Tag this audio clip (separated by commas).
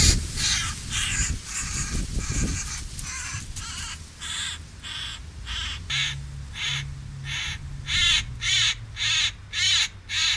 magpie calling